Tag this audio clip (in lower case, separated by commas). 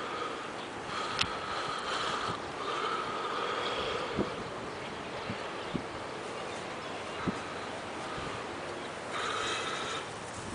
outside, urban or man-made